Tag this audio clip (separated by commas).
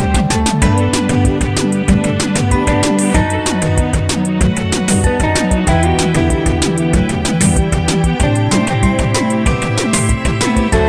Blues, Music, Jazz